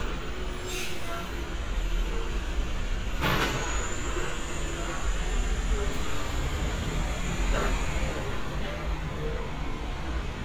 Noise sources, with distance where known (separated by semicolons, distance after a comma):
large-sounding engine, near